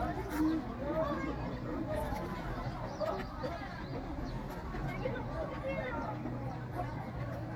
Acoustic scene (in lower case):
park